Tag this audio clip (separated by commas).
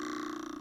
Cutlery, home sounds